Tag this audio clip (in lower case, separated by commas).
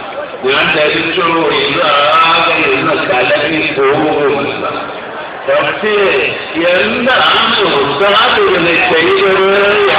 man speaking, speech, monologue